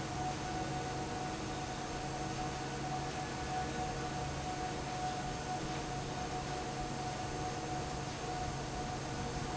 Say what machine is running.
fan